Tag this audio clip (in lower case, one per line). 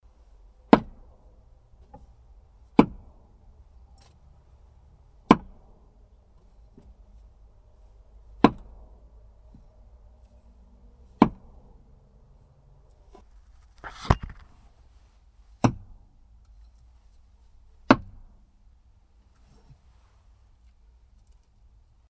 wood